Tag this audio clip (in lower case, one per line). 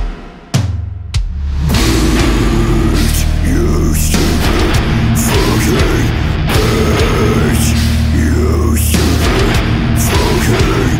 singing